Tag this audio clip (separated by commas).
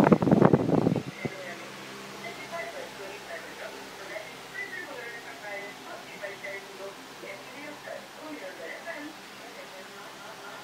Speech, Vehicle